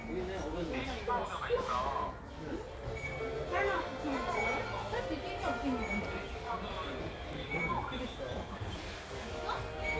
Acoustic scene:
crowded indoor space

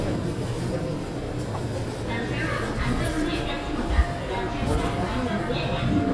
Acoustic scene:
subway station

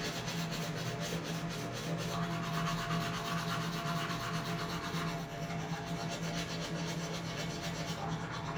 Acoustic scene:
restroom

